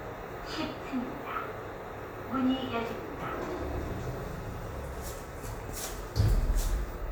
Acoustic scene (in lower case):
elevator